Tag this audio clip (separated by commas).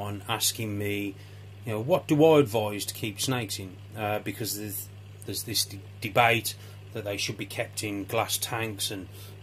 Speech, inside a small room